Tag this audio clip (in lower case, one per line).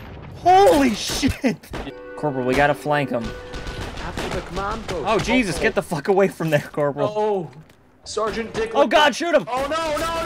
speech
music